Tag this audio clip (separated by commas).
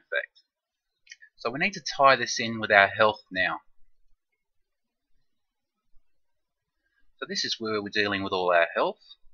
Speech